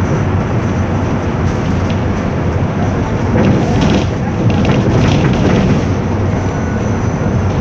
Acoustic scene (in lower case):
bus